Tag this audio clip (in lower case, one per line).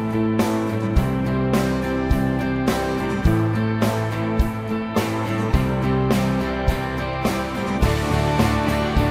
music